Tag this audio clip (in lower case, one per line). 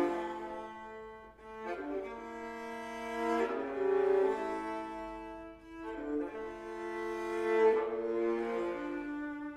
musical instrument
music
fiddle